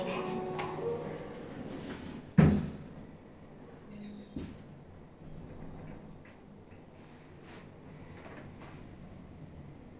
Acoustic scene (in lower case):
elevator